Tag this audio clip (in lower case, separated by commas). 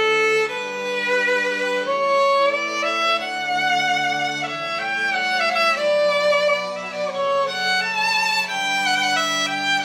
music, musical instrument, fiddle